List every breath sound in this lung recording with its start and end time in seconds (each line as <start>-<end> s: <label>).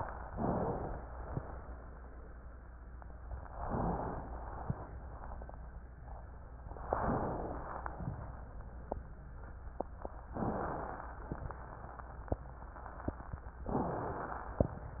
0.24-0.97 s: inhalation
0.34-0.91 s: wheeze
3.55-4.28 s: inhalation
4.26-4.88 s: exhalation
6.79-7.63 s: inhalation
10.34-11.18 s: inhalation
13.67-14.58 s: inhalation